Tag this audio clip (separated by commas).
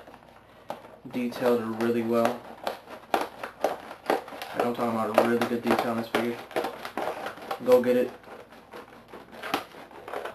Speech